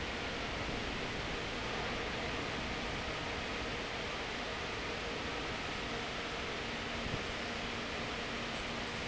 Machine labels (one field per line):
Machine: fan